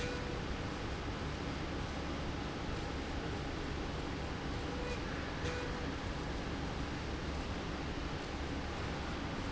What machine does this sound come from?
slide rail